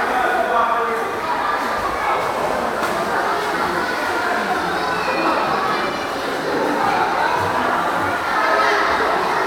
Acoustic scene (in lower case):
crowded indoor space